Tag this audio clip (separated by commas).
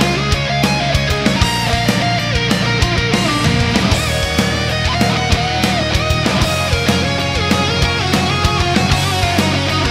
Electric guitar, Music, Guitar, Musical instrument, Strum, Plucked string instrument